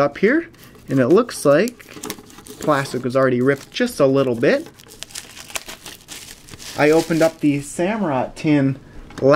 A man is speaking followed by tearing sound and the man speaking again